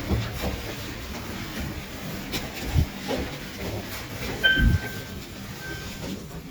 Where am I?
in an elevator